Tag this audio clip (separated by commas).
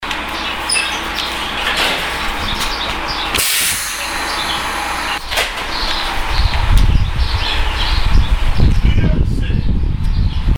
Bus, Vehicle, Motor vehicle (road)